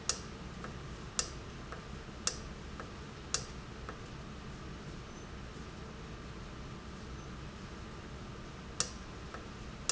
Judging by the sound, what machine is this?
valve